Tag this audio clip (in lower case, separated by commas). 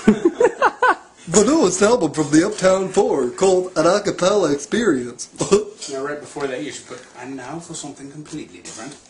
speech, inside a small room